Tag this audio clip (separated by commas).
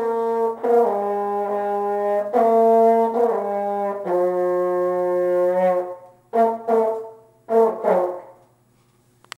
French horn, playing french horn, Brass instrument